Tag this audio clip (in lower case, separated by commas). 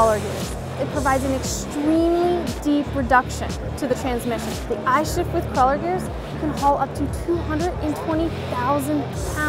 speech, music